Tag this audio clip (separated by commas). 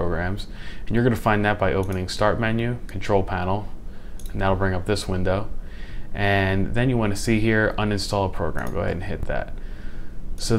Speech